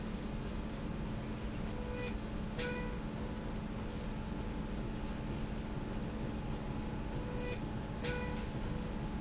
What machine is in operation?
slide rail